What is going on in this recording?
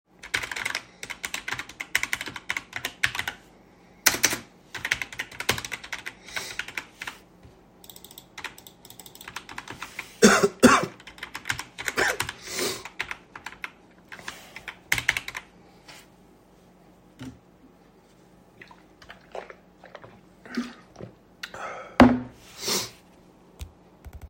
I was typing on my keyboard and had to cough so I drank some water.